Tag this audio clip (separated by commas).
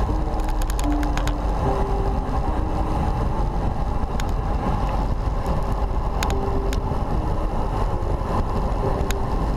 Music, Vehicle